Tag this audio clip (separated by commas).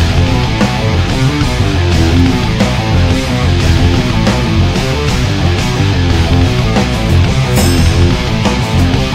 Musical instrument, Strum, Guitar, Music, Bass guitar, Plucked string instrument